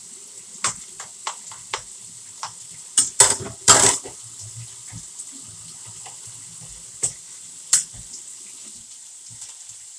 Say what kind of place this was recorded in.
kitchen